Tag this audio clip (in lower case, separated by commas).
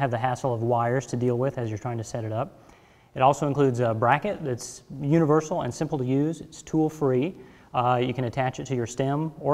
speech